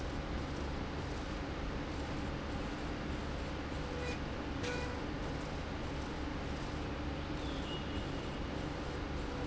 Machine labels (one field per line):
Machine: slide rail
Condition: normal